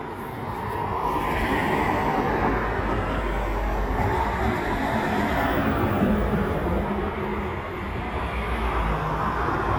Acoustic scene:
street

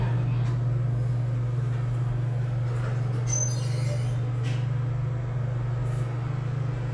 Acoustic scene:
elevator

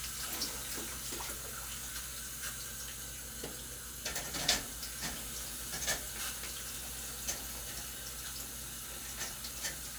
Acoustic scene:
kitchen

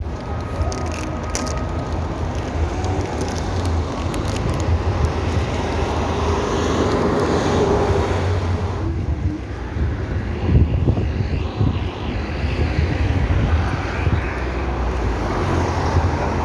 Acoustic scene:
street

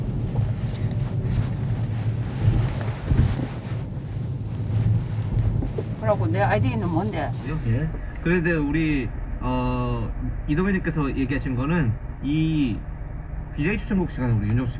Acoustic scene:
car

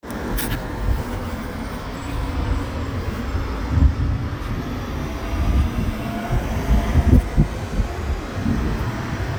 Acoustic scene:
street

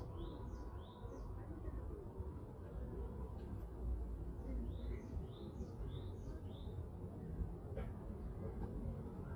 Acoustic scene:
residential area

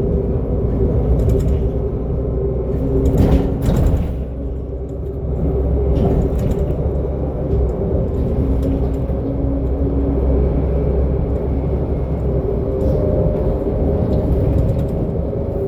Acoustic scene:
bus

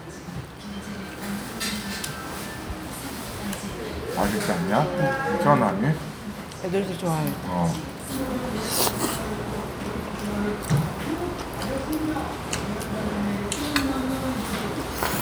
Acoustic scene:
restaurant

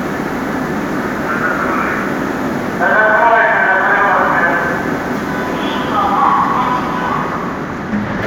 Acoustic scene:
subway station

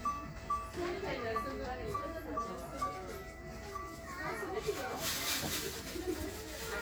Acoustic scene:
crowded indoor space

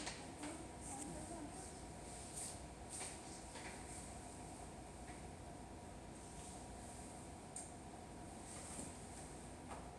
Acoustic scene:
subway station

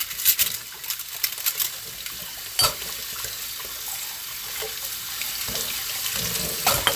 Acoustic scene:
kitchen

